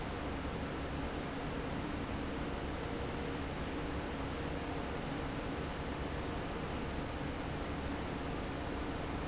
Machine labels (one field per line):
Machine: fan